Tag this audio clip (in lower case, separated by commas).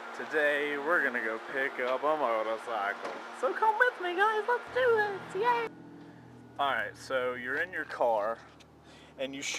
speech